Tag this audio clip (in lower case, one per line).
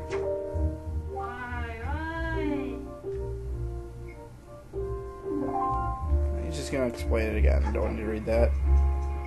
speech
music